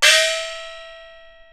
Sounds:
musical instrument
gong
music
percussion

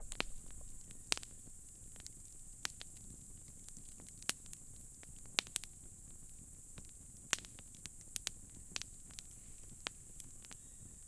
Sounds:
fire

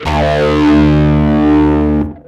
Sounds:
bass guitar
guitar
musical instrument
electric guitar
music
plucked string instrument

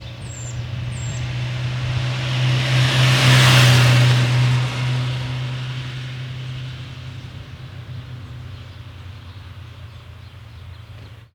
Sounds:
motor vehicle (road)
vehicle
motorcycle

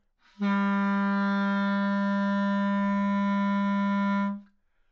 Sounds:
music
woodwind instrument
musical instrument

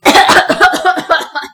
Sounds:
cough
respiratory sounds

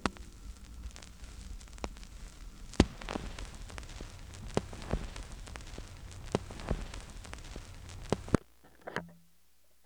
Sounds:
crackle

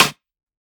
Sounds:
snare drum
musical instrument
music
drum
percussion

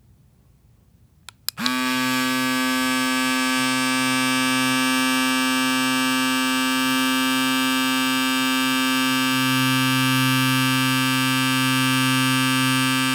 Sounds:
domestic sounds

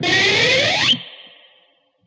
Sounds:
music
plucked string instrument
musical instrument
guitar

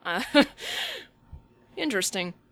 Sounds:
chortle
laughter
human voice

